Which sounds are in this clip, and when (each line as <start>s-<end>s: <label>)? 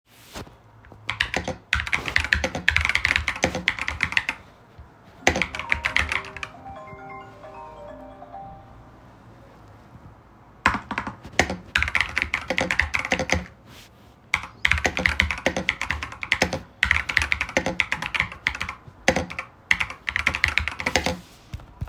1.0s-4.4s: keyboard typing
5.2s-6.5s: keyboard typing
5.5s-8.7s: phone ringing
10.6s-13.8s: keyboard typing
14.3s-21.4s: keyboard typing